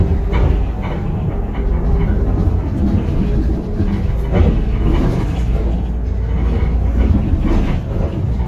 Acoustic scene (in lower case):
bus